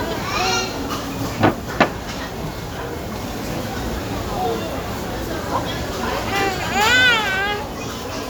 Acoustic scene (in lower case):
restaurant